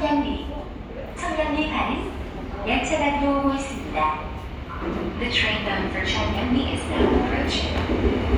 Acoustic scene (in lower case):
subway station